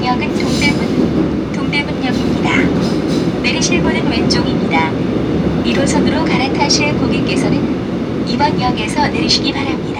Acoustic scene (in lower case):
subway train